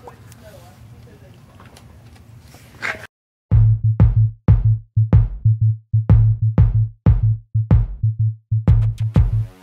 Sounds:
drum machine

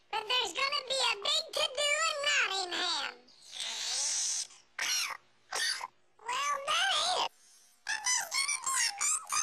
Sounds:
speech

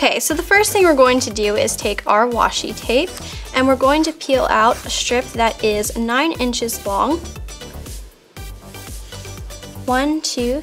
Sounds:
music, speech

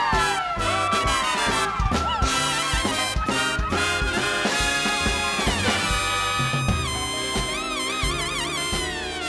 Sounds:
music

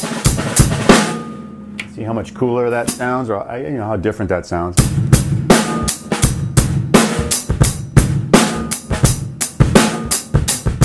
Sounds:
percussion, bass drum, rimshot, drum, drum roll, drum kit, snare drum

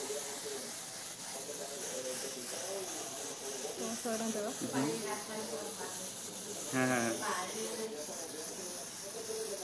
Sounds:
spray, speech

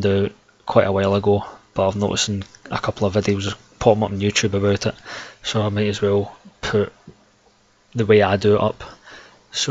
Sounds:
speech

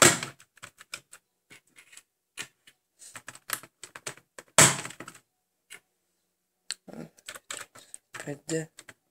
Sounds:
computer keyboard, speech

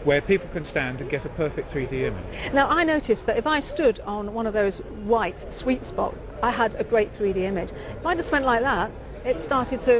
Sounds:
speech

